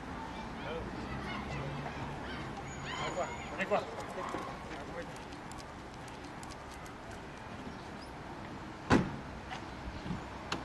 Traffic passing in the distance, people speak, a car door shuts